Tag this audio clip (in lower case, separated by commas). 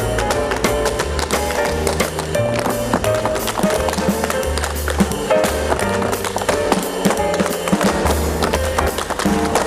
music